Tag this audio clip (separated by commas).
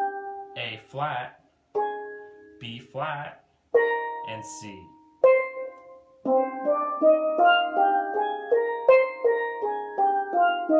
playing steelpan